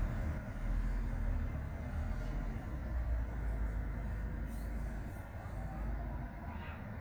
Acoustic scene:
residential area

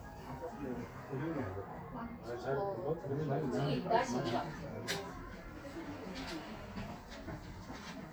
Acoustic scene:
crowded indoor space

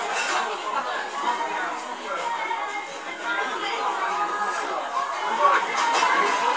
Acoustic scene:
restaurant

